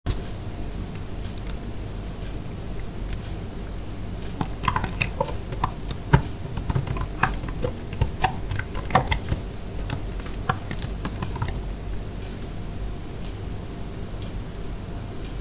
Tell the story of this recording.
I waited for a couple of seconds and then started typing on a keyboard.